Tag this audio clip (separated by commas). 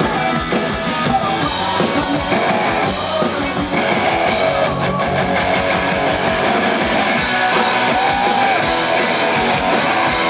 Music